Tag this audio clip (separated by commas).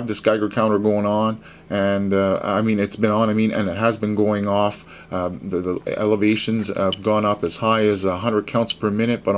Speech